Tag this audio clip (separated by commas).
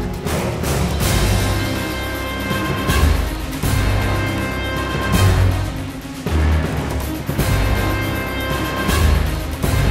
Music